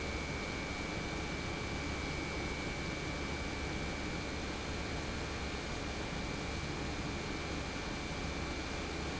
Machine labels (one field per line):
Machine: pump